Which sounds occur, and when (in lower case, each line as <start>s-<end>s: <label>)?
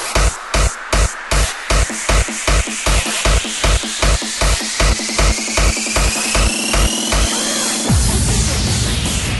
0.0s-9.3s: music